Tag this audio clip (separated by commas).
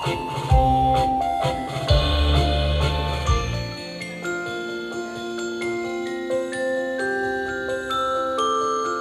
Glockenspiel, Mallet percussion, xylophone, Wind chime